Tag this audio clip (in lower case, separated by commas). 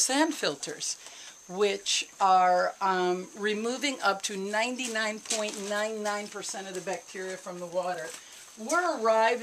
speech